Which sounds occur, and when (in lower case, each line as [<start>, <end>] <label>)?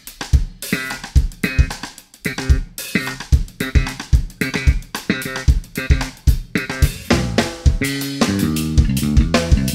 [0.01, 9.74] music